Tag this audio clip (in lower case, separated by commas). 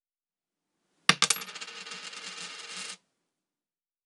coin (dropping), home sounds